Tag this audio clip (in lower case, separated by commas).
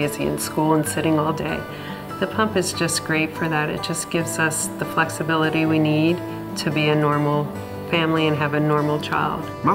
speech, music